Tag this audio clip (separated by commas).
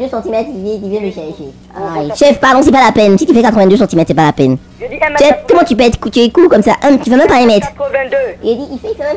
Speech